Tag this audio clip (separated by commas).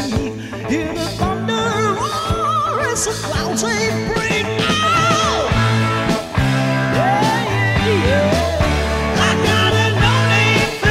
Music